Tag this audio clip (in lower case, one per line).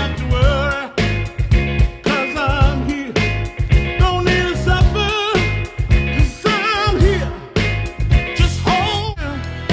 music
soul music
ska